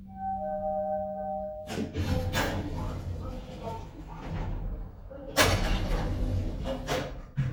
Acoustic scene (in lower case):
elevator